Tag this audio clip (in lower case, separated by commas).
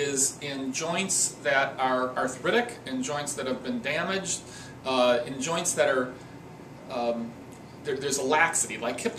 speech